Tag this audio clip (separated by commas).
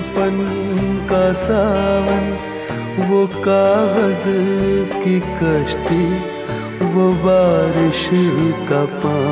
Music of Bollywood, Music